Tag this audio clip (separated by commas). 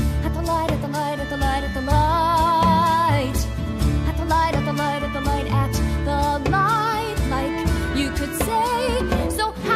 Music